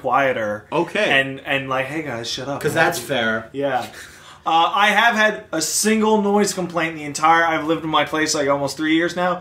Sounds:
speech

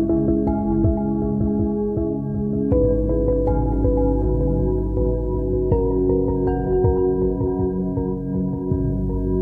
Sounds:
music
synthesizer

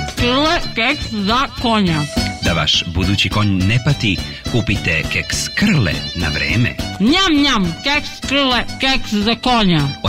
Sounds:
music
speech

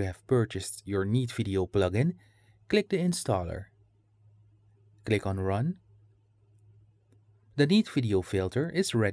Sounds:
speech

